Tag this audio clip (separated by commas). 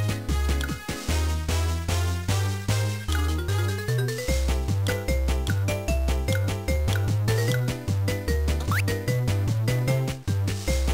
Music